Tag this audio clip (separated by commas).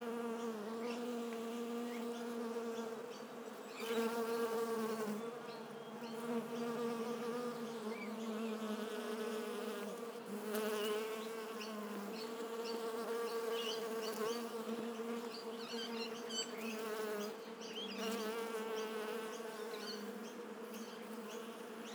Buzz, Insect, Animal, Wild animals